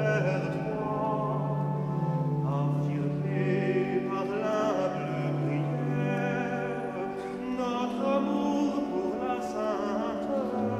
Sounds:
Music

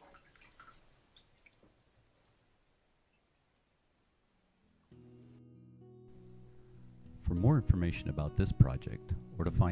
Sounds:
Speech, Music

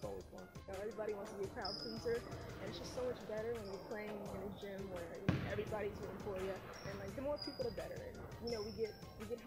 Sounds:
Basketball bounce, Music, Speech, man speaking

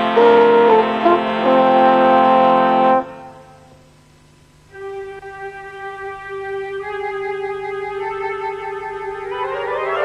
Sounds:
Music

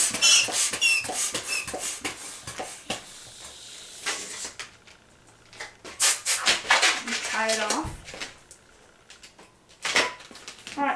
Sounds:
Speech

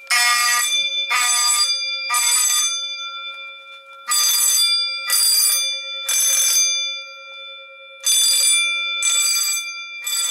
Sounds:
Fire alarm

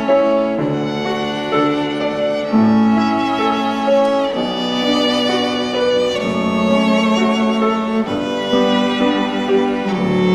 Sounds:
Violin, Music, Musical instrument

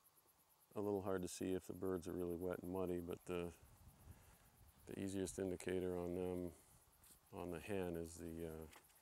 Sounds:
Speech

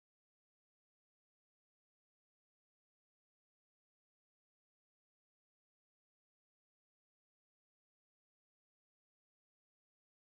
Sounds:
Silence

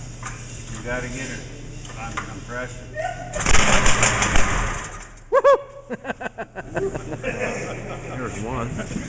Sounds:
Speech

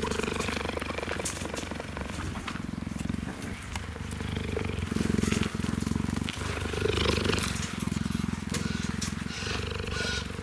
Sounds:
cheetah chirrup

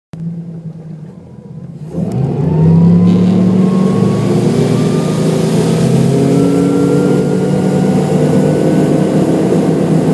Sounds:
outside, rural or natural, Vehicle, Boat, motorboat, speedboat

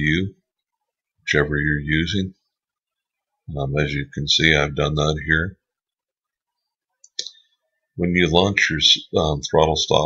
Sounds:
Speech

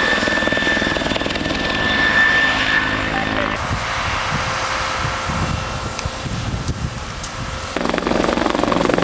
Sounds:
Wind, Wind noise (microphone)

